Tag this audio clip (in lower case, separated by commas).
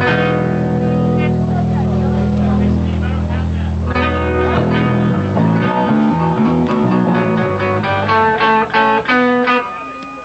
speech, music